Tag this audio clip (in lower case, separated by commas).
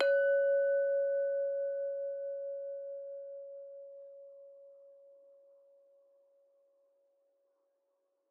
glass, chink